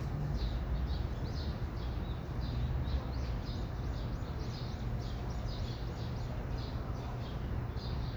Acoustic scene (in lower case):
park